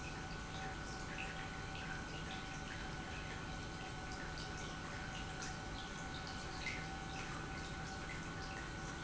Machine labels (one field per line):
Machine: pump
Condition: normal